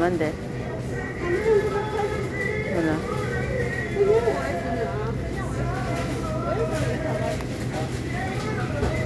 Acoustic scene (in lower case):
crowded indoor space